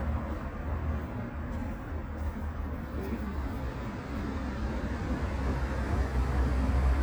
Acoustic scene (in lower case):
residential area